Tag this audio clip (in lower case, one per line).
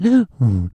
breathing
respiratory sounds